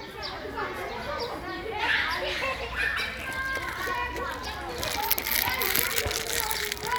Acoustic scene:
park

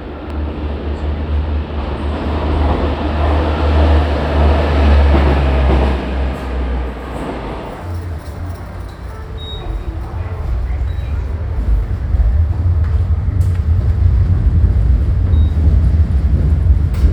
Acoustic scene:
subway station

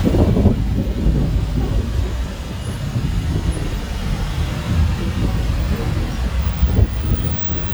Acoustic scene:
street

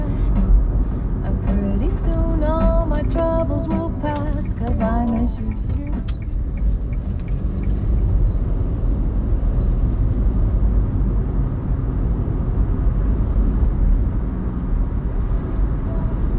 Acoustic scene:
car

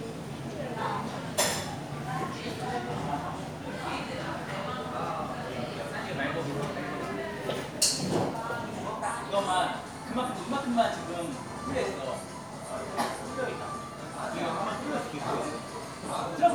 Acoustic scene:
crowded indoor space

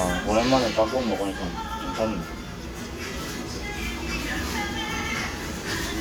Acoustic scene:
restaurant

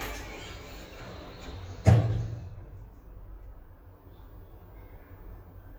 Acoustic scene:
elevator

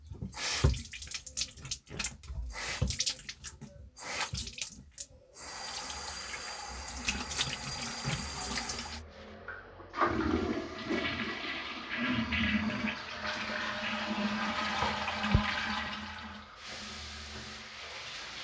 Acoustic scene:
restroom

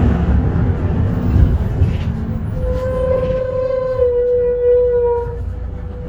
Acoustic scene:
bus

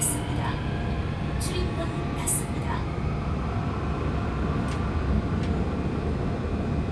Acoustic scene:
subway train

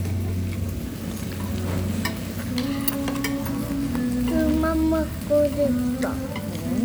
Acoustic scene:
restaurant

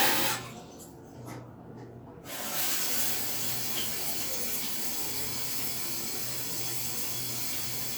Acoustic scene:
restroom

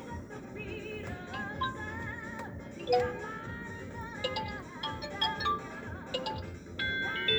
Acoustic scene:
car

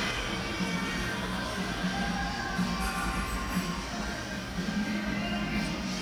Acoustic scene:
cafe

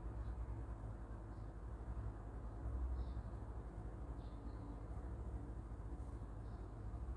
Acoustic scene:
park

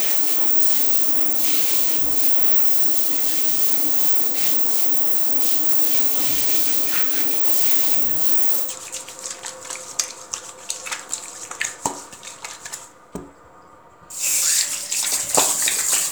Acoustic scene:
restroom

